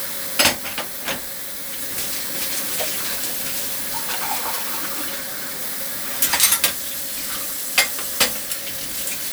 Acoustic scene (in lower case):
kitchen